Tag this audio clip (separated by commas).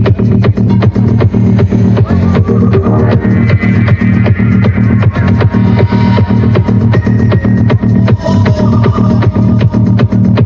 Music